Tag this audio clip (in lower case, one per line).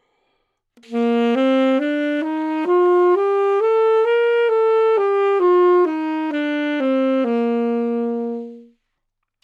music
wind instrument
musical instrument